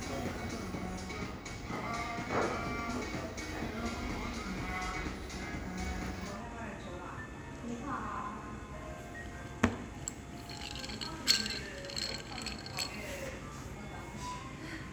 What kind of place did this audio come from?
cafe